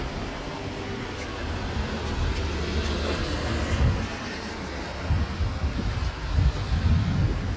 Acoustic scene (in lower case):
residential area